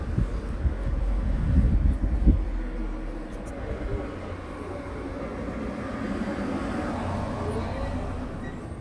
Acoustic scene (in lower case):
residential area